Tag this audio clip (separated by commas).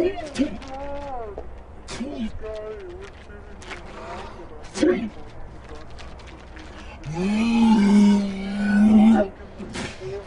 Speech